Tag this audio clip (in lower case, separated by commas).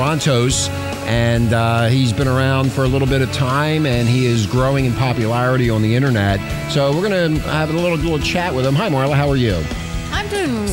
speech, music